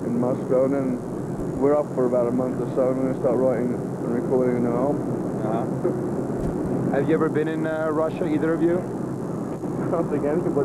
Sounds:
Speech

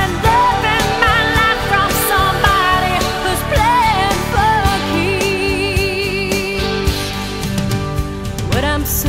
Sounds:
Music

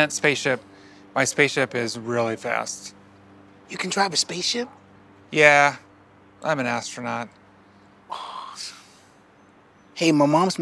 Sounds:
Speech

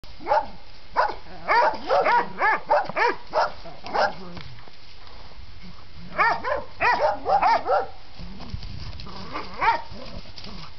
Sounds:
Dog, pets, Animal, Bark

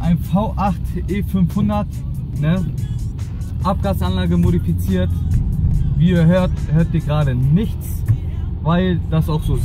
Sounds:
Music, Speech

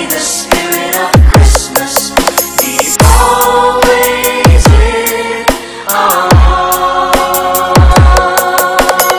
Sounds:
Music, Christian music, Christmas music

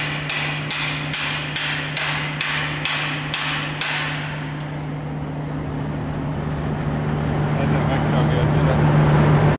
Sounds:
Speech

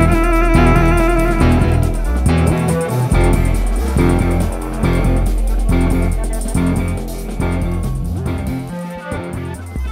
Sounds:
playing bass guitar, Bass guitar, Music

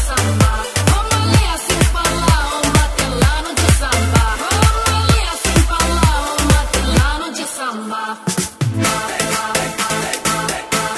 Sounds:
Electronic music, Music

